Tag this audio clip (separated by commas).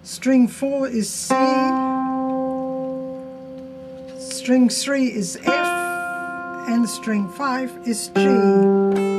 Speech, Plucked string instrument, Music